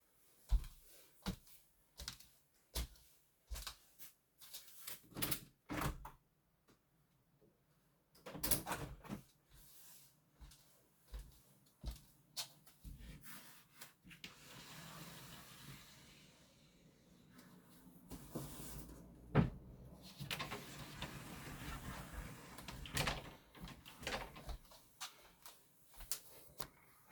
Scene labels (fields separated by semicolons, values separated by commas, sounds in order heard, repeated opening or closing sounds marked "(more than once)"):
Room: bedroom; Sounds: footsteps, window (more than once), wardrobe or drawer